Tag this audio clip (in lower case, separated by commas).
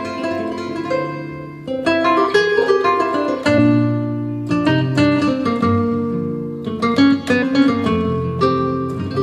strum, musical instrument, music